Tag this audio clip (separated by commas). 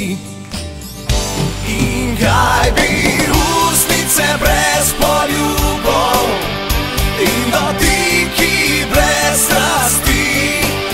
Music